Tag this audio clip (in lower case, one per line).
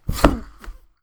thud